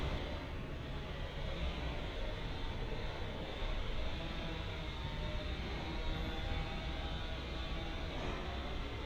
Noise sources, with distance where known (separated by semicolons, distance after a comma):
small-sounding engine, far